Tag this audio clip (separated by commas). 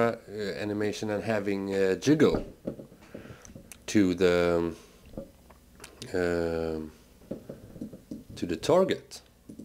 Speech